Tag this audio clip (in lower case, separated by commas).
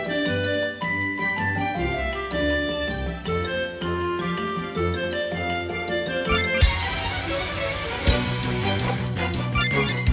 music, funny music